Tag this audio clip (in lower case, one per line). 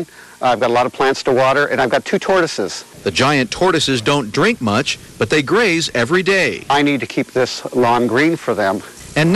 speech